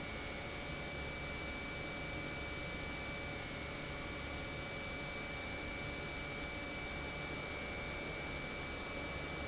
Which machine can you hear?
pump